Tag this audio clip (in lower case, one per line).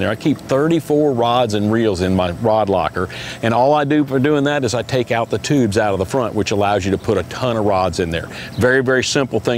speech